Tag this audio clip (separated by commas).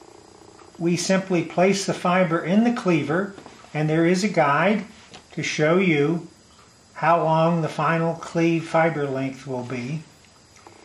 inside a small room, Speech